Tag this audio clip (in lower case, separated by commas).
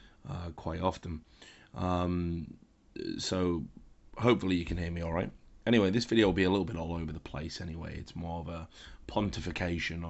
speech